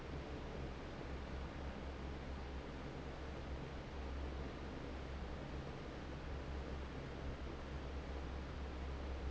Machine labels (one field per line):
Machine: fan